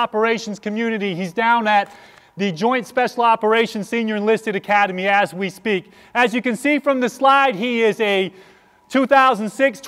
A man giving a speech